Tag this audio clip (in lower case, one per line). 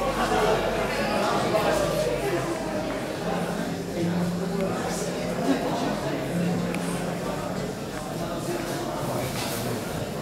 speech